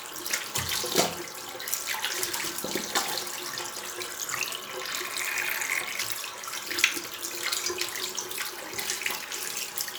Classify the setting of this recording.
restroom